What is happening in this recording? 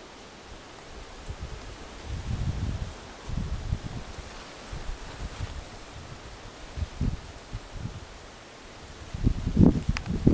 Wind blows and rain falls